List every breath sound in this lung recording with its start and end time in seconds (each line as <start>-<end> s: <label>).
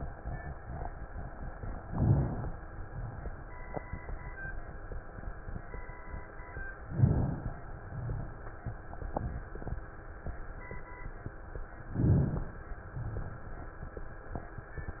1.80-2.54 s: inhalation
6.85-7.59 s: inhalation
11.88-12.62 s: inhalation